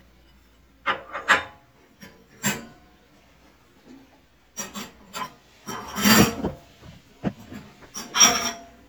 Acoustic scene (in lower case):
kitchen